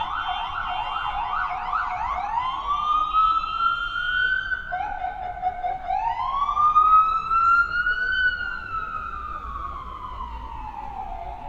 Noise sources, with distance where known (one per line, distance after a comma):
car horn
siren, near
unidentified human voice